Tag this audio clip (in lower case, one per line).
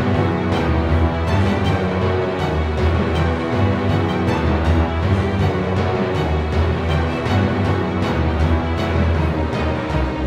music